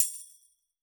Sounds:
musical instrument, music, percussion, tambourine

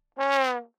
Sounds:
musical instrument, brass instrument, music

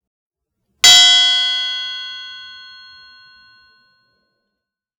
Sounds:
bell

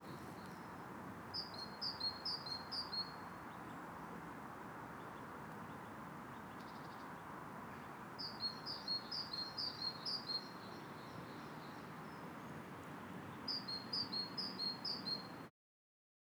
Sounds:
wild animals, animal, tweet, bird song, bird

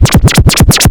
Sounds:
scratching (performance technique), musical instrument, music

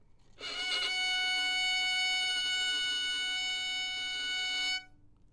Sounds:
bowed string instrument, musical instrument, music

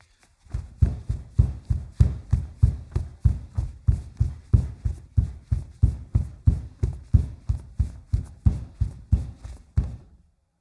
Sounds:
run

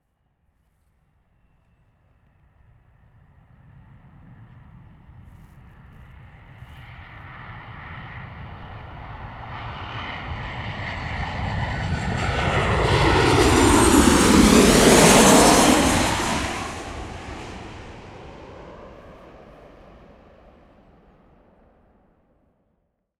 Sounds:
aircraft, vehicle

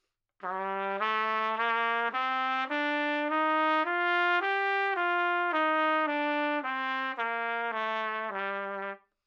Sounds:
brass instrument, musical instrument, trumpet, music

